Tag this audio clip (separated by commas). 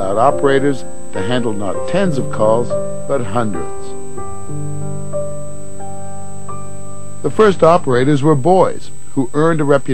Speech, Music